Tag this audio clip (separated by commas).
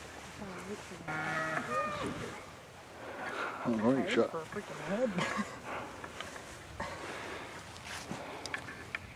Speech, Animal